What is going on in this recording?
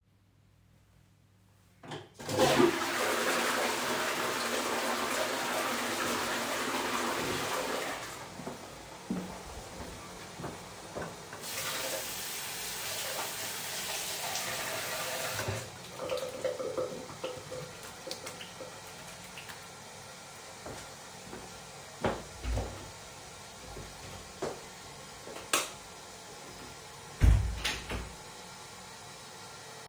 i flushed the toilet, walked to the wash basin, turned on the tap, washed my hands, walked to the door, opened the door ,switched off the lights, walked out of the bathroom, closed the door